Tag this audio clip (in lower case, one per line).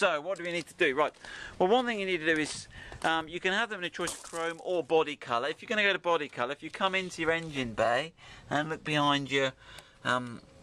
speech